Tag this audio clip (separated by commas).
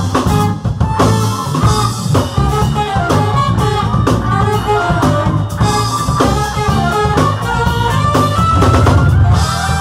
Music, Funk